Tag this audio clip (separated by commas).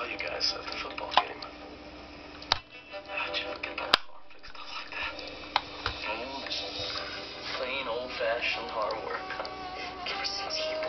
Speech, Music